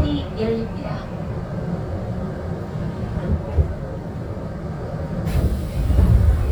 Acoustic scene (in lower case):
subway train